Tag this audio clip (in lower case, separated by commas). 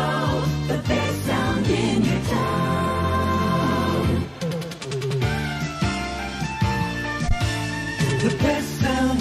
music